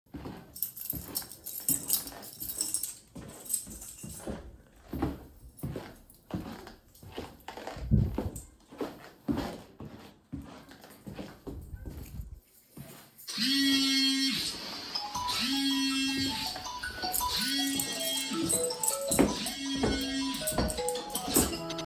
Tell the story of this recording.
I was walking down the hallway towards the exit, continuously jingling my keys. Suddenly, my phone started ringing loudly, resulting in the simultaneous sound of footsteps, keys, and the ringtone.